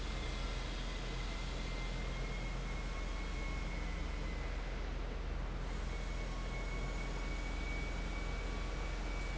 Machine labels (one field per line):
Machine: fan